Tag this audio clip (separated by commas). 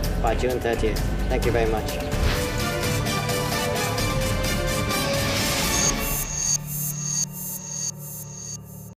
Music, Speech